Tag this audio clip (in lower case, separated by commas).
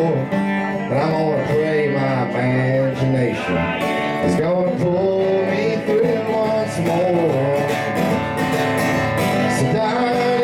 music, country, singing, speech, guitar